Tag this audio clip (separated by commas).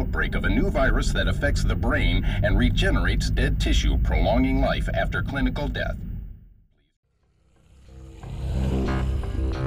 Speech